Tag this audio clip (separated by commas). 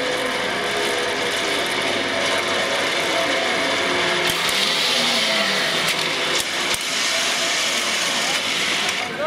Zipper (clothing), Speech